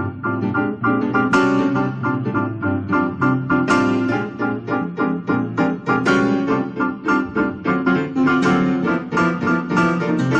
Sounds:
Musical instrument, Piano, Music, Electronic organ

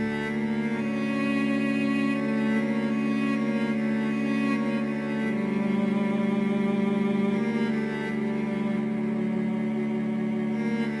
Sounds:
Music

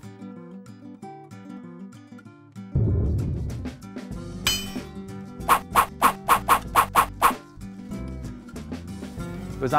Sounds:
Speech, Music

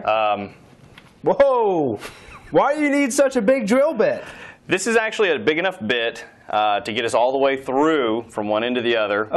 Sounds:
Speech

